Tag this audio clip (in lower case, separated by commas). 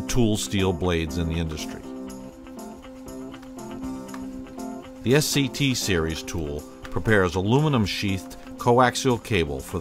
speech, music